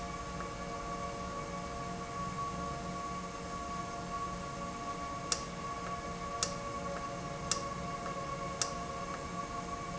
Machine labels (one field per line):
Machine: valve